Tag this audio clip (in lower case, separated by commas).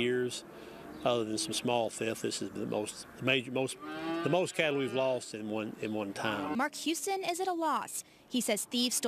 speech